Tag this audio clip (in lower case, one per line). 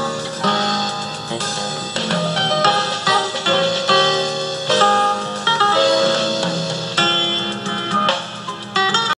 music